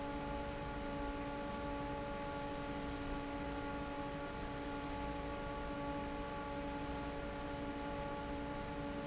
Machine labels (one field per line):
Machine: fan